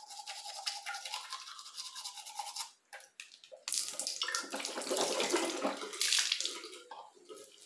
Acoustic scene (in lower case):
restroom